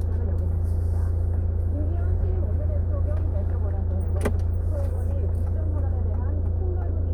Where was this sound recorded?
in a car